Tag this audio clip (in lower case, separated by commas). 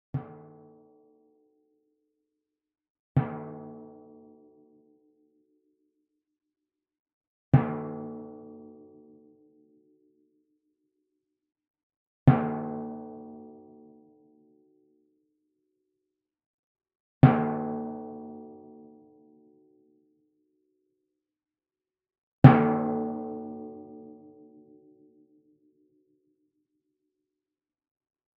musical instrument, music, drum, percussion